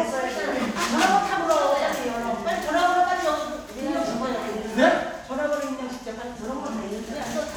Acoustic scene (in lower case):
crowded indoor space